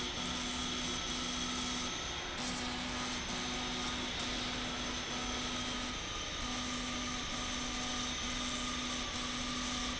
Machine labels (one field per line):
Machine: slide rail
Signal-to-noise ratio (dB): -6 dB